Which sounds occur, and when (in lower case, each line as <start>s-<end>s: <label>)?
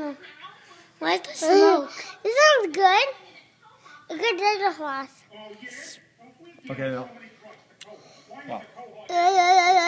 0.0s-0.2s: kid speaking
0.0s-9.8s: conversation
0.0s-9.8s: mechanisms
0.1s-0.9s: woman speaking
0.6s-0.9s: breathing
0.9s-1.9s: kid speaking
1.2s-1.2s: tick
1.8s-2.1s: breathing
1.8s-2.3s: woman speaking
2.2s-3.1s: kid speaking
2.5s-2.6s: tick
2.7s-2.7s: tick
3.0s-4.0s: woman speaking
3.2s-3.4s: breathing
3.8s-4.1s: breathing
4.1s-5.1s: kid speaking
5.2s-9.0s: male speech
5.6s-6.0s: breathing
6.6s-6.7s: tick
7.4s-7.5s: tick
7.7s-7.8s: tick
7.9s-8.3s: breathing
9.0s-9.8s: kid speaking